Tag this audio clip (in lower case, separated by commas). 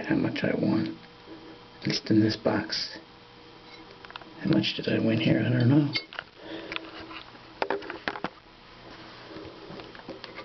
inside a small room, speech